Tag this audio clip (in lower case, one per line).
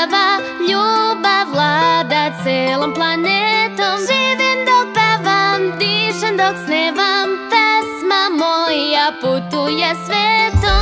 music
music for children